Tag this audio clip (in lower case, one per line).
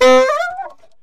wind instrument
music
musical instrument